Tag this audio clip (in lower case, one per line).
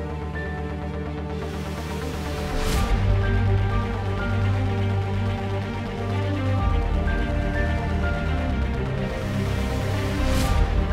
music